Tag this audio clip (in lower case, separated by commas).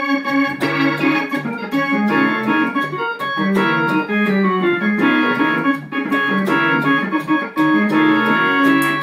keyboard (musical), hammond organ, music, musical instrument